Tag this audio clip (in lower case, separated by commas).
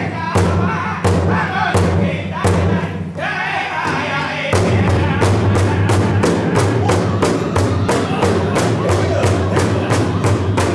music, thump